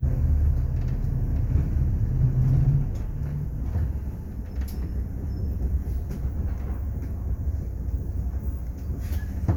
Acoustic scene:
bus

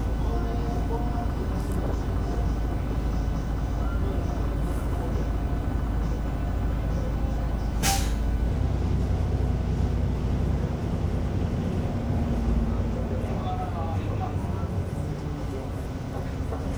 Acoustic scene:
bus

